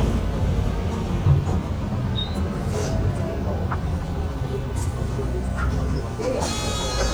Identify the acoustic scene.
bus